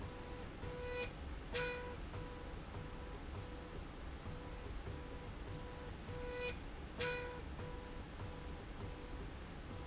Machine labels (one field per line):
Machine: slide rail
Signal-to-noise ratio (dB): 6 dB